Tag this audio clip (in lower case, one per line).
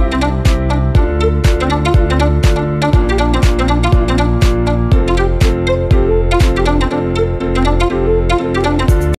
music